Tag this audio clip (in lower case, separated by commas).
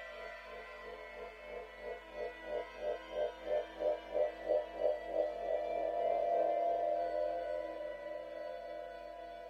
music, musical instrument